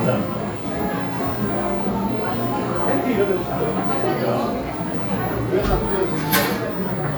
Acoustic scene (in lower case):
cafe